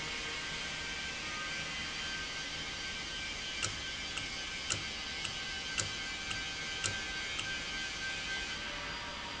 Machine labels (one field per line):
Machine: valve